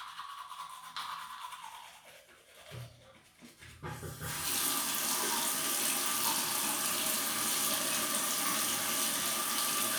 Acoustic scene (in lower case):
restroom